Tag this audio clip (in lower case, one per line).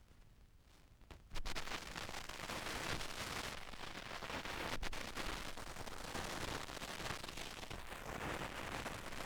crackle